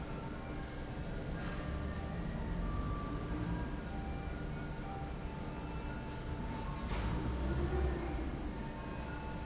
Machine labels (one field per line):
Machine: fan